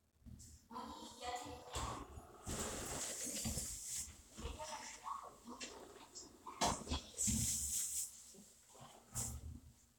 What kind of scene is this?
elevator